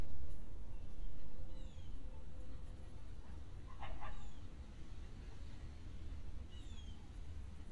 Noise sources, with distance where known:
background noise

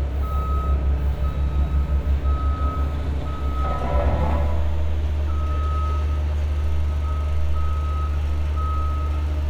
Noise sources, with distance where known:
non-machinery impact, near; reverse beeper, near

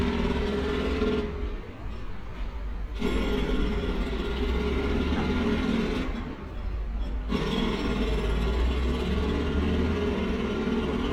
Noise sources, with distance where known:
jackhammer

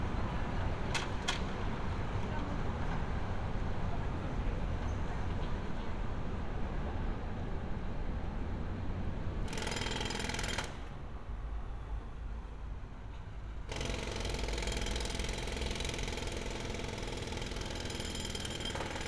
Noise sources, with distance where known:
unidentified impact machinery

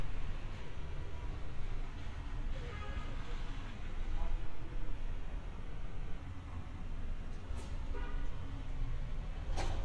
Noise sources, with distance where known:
car horn, far

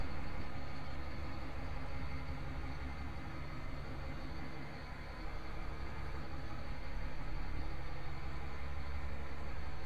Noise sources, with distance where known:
large-sounding engine, far

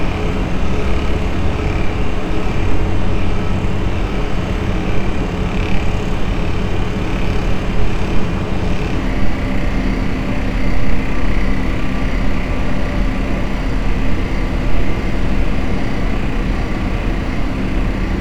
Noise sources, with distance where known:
large-sounding engine, near

